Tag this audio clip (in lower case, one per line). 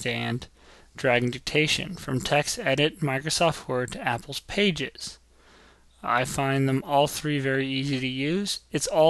speech